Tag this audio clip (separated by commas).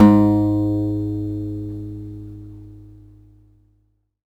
Guitar, Plucked string instrument, Music, Musical instrument, Acoustic guitar